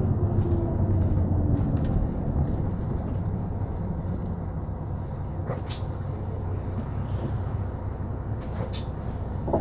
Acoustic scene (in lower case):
bus